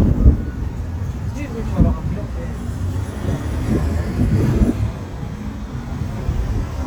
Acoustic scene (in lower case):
street